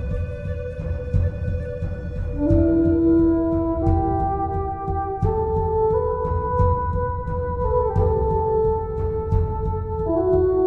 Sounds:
music
singing bowl

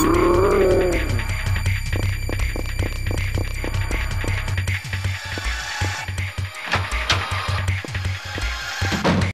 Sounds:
music

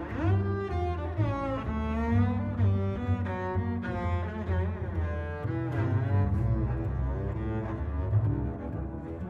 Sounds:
cello
musical instrument
double bass
music
bowed string instrument
playing cello

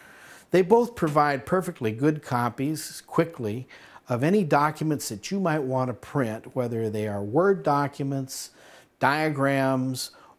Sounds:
speech

